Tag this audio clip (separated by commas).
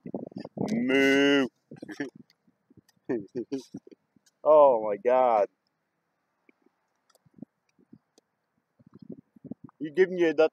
cattle mooing